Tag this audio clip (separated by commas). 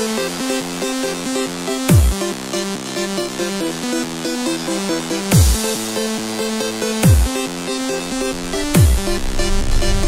Techno, Music